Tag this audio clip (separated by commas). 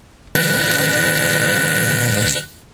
Fart